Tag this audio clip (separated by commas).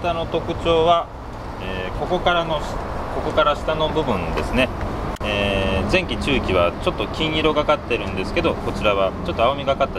Speech